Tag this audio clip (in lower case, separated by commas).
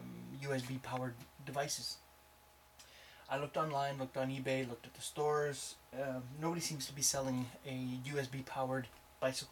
speech